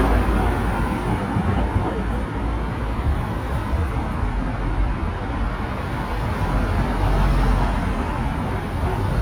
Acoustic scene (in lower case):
street